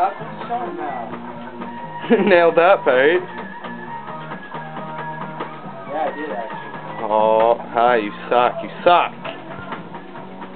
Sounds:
Musical instrument, Music, Speech

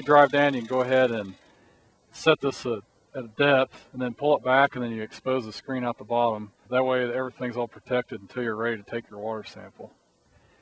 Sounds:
Speech

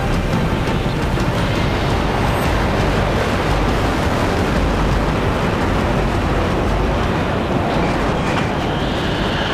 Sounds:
Music, Speech, outside, rural or natural

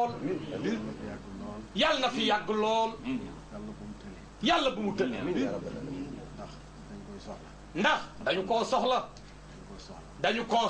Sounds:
Speech

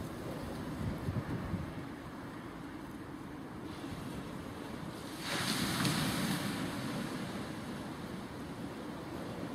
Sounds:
outside, rural or natural

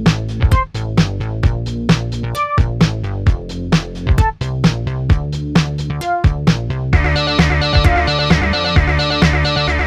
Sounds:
Music

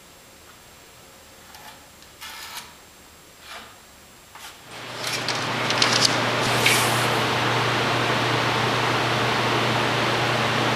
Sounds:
Wood

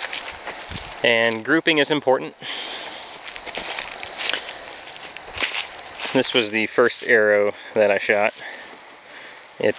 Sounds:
Speech

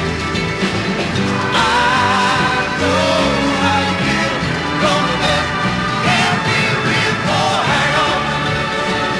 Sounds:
Music

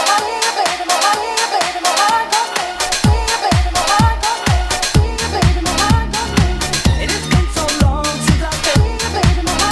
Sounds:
Dance music, Disco, Song, Music

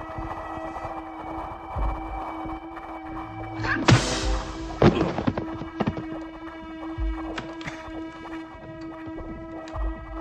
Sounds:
Thump

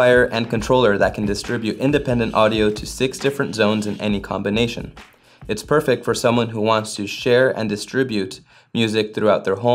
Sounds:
Music, Speech

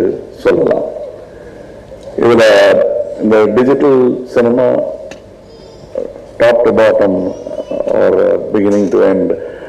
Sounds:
Male speech, Narration, Speech

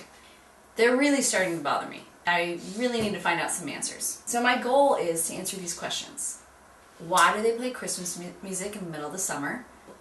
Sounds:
Speech

